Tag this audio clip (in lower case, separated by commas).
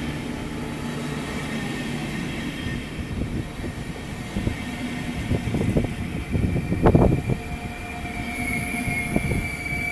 train wagon, train, rail transport, vehicle